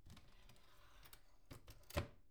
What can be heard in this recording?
wooden cupboard opening